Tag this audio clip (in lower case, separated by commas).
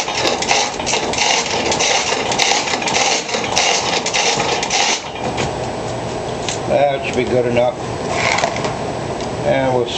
speech